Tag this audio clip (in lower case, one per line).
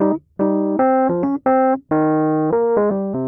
piano
musical instrument
music
keyboard (musical)